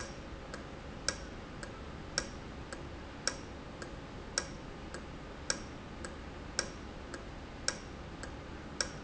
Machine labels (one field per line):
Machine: valve